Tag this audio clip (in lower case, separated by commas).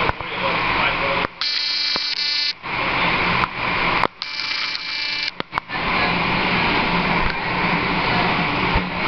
outside, urban or man-made, speech